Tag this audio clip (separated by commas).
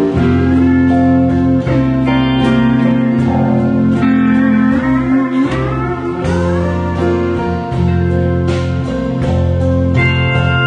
Music, Musical instrument, Guitar, Plucked string instrument, Acoustic guitar